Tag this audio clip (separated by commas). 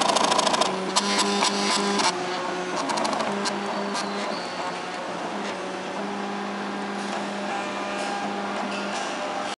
printer printing, Printer